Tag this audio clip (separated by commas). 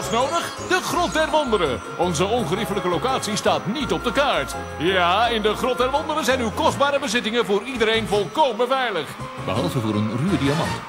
Music, Speech